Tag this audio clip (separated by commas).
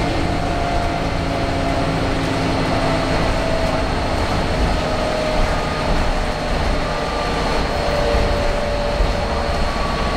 Vehicle